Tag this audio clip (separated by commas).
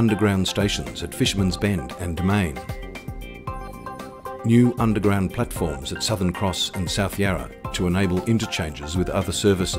Speech, Music